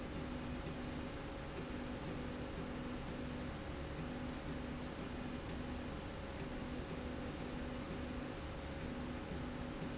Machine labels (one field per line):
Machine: slide rail